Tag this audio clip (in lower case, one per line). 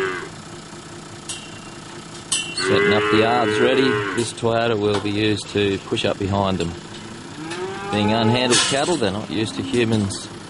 speech